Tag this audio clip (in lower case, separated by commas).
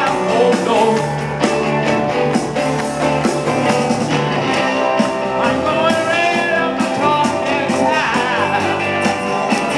music, singing, rock and roll